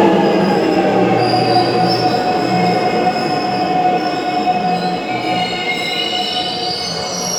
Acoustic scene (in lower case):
subway station